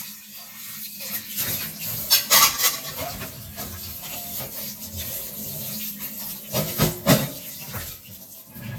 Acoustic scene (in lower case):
kitchen